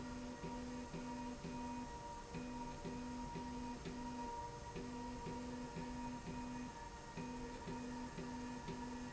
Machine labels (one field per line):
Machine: slide rail